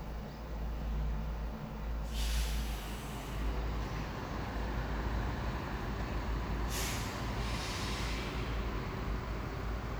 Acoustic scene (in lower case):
street